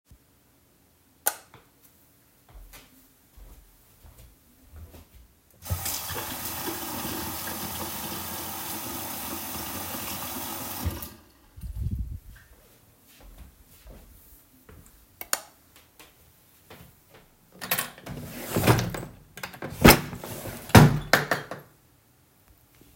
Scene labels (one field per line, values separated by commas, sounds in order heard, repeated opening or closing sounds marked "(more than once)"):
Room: bathroom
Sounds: light switch, footsteps, running water, wardrobe or drawer (more than once)